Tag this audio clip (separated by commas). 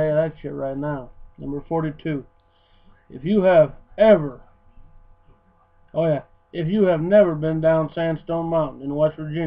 Speech